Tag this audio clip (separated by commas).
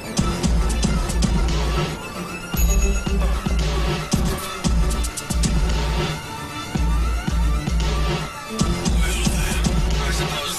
Music